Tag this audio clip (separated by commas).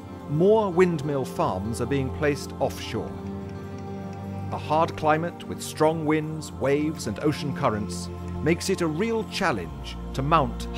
Speech, Music